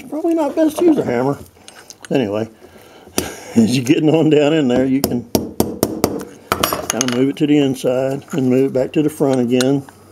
A man is speaking and tapping something